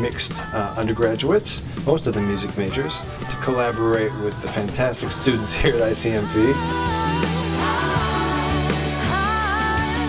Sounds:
progressive rock, speech, music

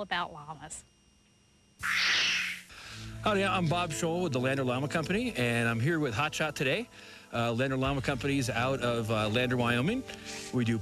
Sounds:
music, speech

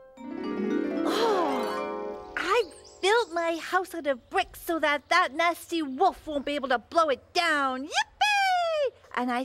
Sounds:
music, speech

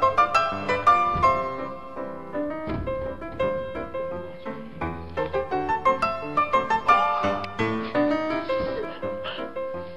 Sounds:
house music, music

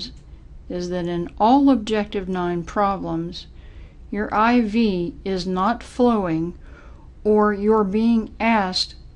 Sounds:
speech

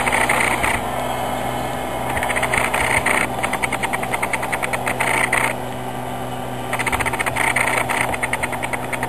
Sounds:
vehicle, aircraft

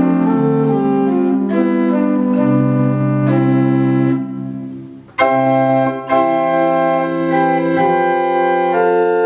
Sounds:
keyboard (musical), music, organ, piano, musical instrument

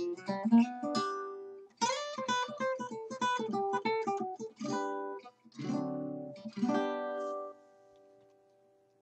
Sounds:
music, musical instrument, guitar, plucked string instrument

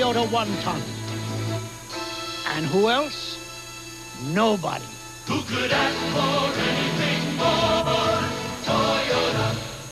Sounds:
speech, music

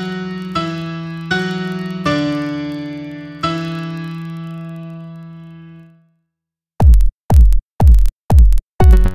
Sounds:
techno, electronic music, music

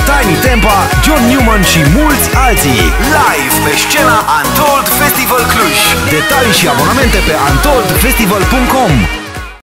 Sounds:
speech, music

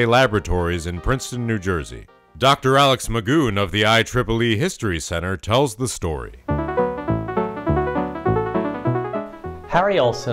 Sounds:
speech, music

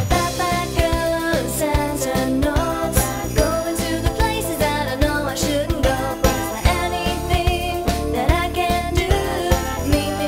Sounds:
music

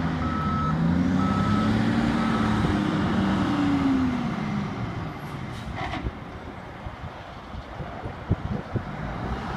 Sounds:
truck, vehicle, reversing beeps

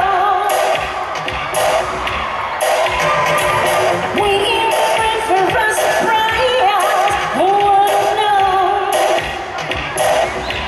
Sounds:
music

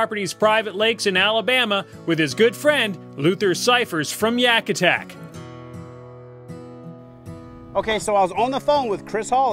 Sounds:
speech, music

